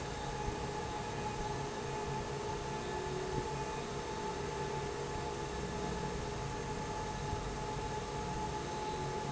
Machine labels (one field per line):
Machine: fan